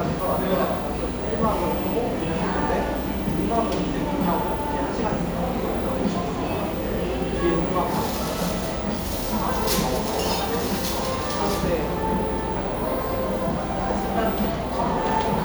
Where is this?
in a cafe